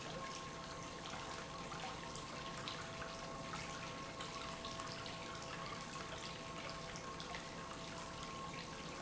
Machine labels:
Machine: pump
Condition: normal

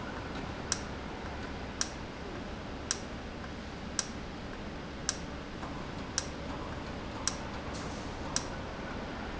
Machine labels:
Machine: valve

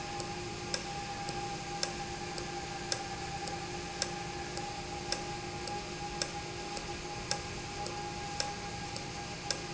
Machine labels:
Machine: valve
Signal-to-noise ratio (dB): -6 dB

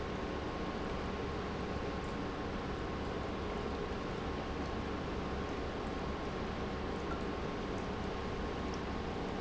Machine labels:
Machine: pump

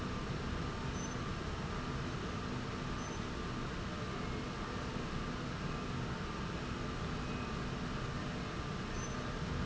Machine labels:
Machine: slide rail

